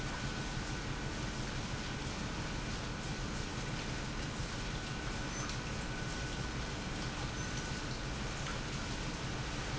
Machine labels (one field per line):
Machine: pump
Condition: normal